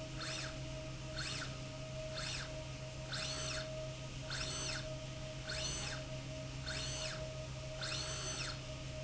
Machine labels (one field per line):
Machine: slide rail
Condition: normal